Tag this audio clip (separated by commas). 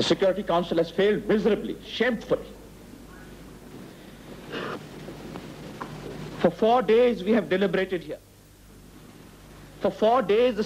Speech, Conversation, Male speech